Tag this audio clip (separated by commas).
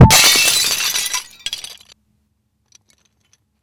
Shatter, Glass